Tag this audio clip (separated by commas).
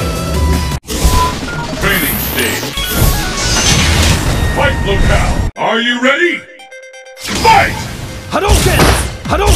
Speech, Music